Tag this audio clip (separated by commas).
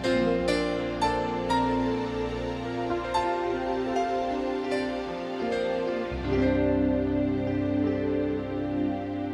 Music